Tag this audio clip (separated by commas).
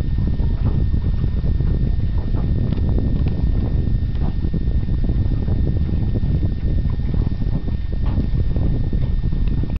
Vehicle